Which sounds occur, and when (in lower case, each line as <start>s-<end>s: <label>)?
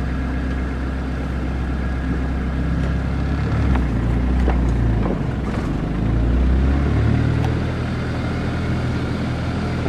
0.0s-9.8s: motor vehicle (road)
0.0s-9.8s: wind
0.5s-0.5s: tick
2.8s-2.9s: tick
3.2s-9.8s: vroom
3.3s-3.8s: clatter
3.7s-3.8s: tick
4.4s-4.5s: tick
4.6s-4.7s: tick
5.0s-5.1s: tick
5.4s-5.8s: clatter
7.4s-7.5s: tick